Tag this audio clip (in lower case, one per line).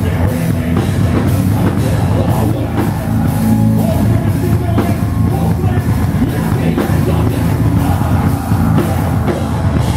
singing
music